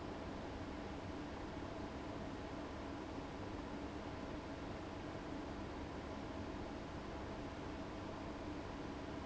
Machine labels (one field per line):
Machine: fan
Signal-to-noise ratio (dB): 6 dB